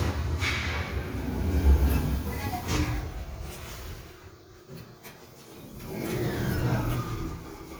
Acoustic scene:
elevator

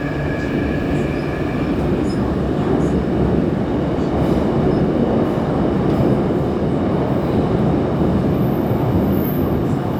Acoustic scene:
subway train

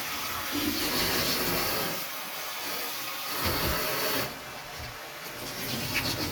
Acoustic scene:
kitchen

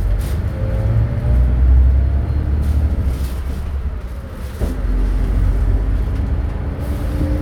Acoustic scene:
bus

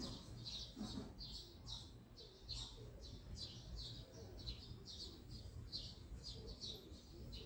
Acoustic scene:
residential area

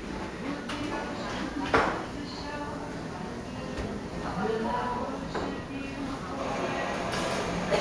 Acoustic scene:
cafe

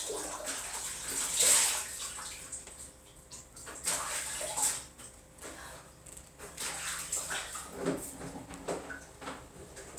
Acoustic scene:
restroom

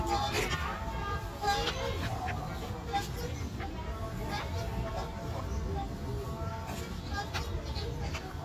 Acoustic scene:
park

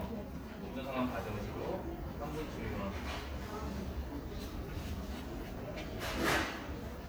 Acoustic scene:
crowded indoor space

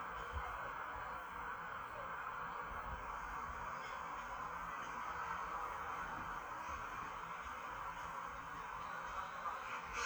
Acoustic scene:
park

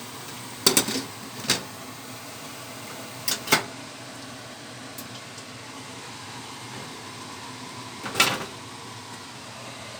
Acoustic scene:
kitchen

